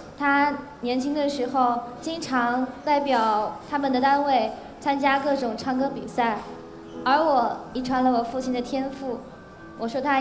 Women giving speech